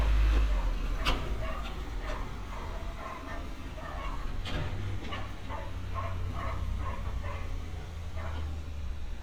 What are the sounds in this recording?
non-machinery impact, dog barking or whining